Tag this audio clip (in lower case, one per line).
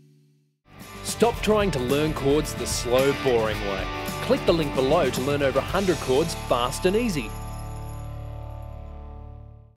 musical instrument
guitar
speech
plucked string instrument
music